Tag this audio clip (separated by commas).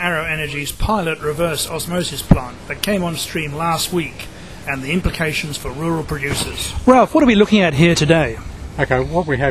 Speech